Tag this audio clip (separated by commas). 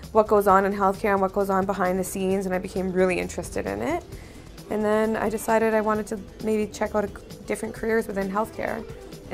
Music, Speech, woman speaking, monologue